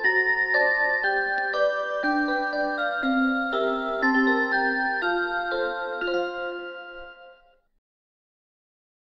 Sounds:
music

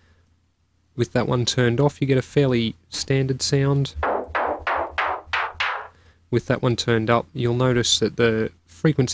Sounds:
speech, sampler

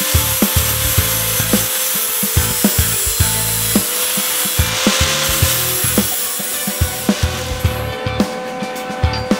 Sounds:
music, inside a large room or hall

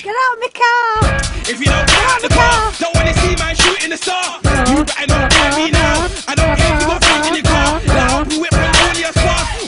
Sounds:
speech, music

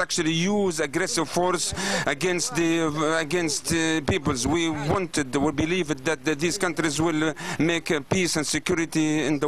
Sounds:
monologue, speech, male speech

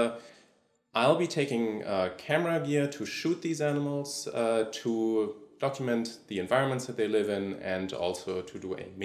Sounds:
speech

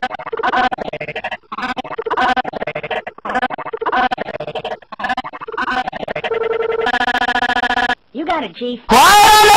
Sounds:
music, speech

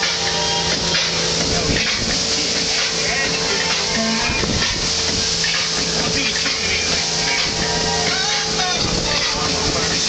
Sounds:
speech, speedboat, music, vehicle, water vehicle

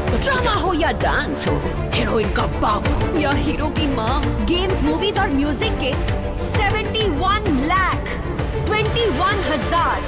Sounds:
music, speech

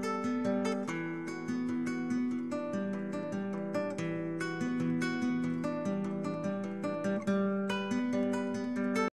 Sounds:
plucked string instrument, strum, music, electric guitar, guitar, musical instrument

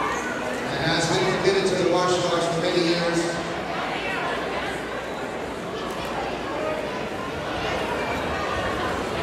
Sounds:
speech

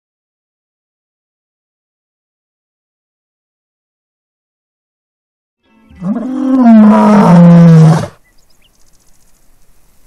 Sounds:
lions roaring

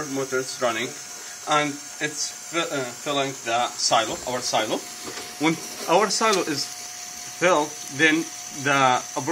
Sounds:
speech

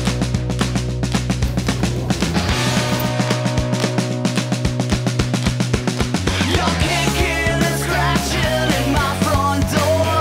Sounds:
soundtrack music, music, dance music

